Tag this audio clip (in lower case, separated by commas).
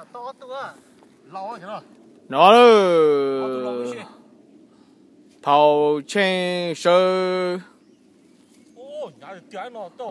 speech